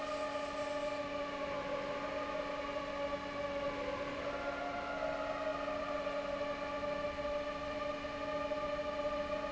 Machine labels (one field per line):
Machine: fan